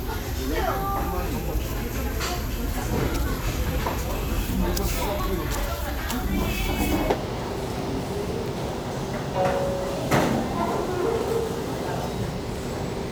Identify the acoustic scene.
restaurant